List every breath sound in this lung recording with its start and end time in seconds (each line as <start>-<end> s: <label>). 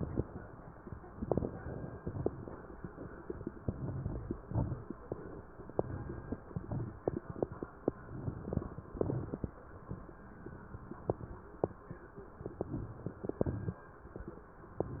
1.12-1.97 s: inhalation
1.12-1.97 s: crackles
1.98-2.83 s: exhalation
1.98-2.83 s: crackles
3.58-4.43 s: inhalation
3.58-4.43 s: crackles
4.46-5.00 s: exhalation
4.46-5.00 s: crackles
5.69-6.43 s: inhalation
5.69-6.43 s: crackles
6.48-7.21 s: exhalation
6.48-7.21 s: crackles
7.96-8.87 s: inhalation
7.96-8.87 s: crackles
8.90-9.81 s: exhalation
8.90-9.81 s: crackles
12.37-13.28 s: inhalation
12.37-13.28 s: crackles
13.35-14.26 s: exhalation
13.35-14.26 s: crackles